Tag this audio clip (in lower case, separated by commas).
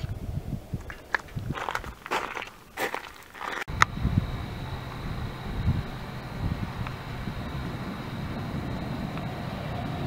rustle